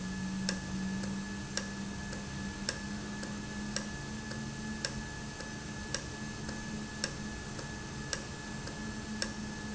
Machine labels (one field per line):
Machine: valve